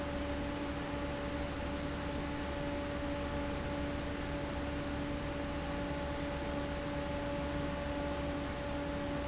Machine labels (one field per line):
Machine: fan